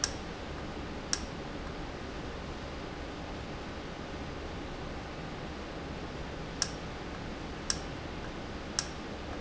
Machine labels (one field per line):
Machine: valve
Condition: normal